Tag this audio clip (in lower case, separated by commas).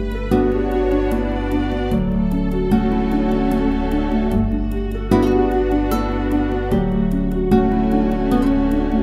music, sad music